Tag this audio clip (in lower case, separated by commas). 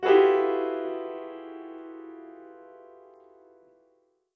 keyboard (musical), music, piano, musical instrument